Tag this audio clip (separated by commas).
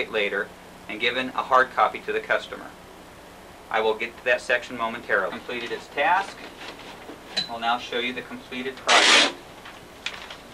inside a small room, Speech